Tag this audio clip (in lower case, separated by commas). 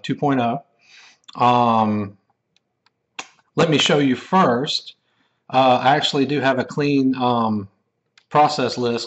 clicking